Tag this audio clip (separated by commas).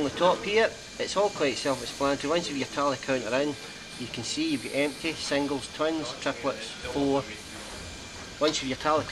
Speech